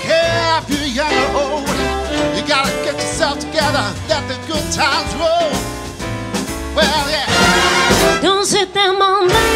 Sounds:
roll
orchestra
music

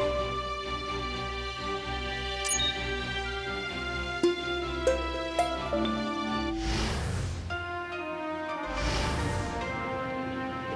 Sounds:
music

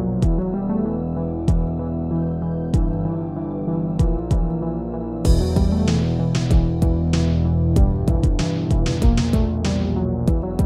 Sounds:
music

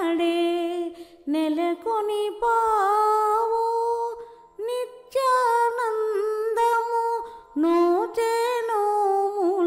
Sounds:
mantra

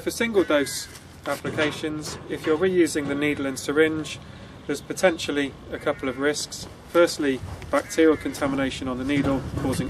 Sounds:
sheep
speech
bleat

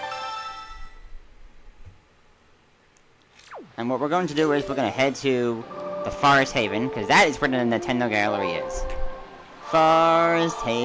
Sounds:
speech
music

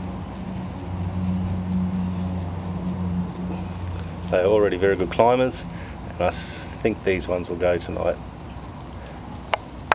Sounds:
speech

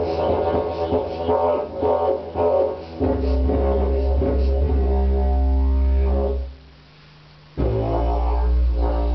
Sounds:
playing didgeridoo

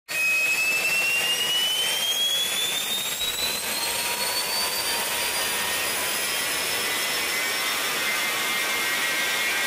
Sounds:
engine
inside a large room or hall
jet engine

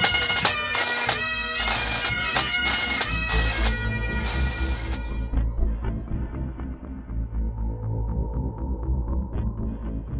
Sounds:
music

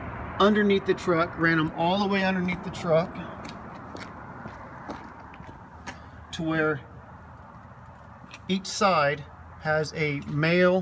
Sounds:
speech

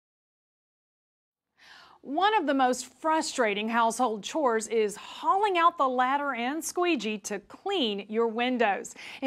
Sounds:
speech

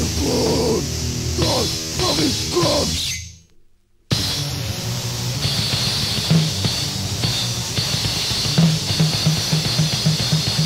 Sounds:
music

